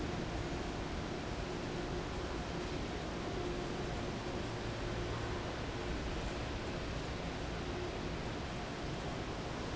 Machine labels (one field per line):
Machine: fan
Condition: abnormal